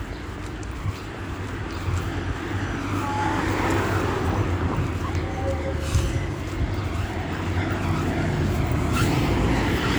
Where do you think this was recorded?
in a residential area